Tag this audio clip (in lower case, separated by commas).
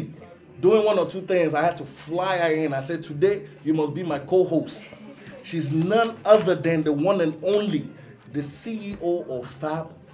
speech